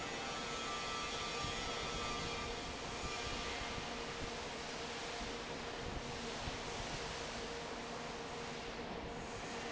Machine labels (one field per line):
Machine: fan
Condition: normal